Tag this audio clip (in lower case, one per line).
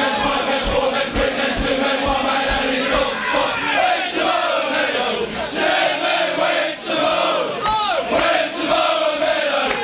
male singing
speech
music